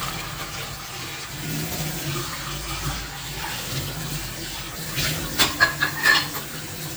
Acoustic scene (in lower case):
kitchen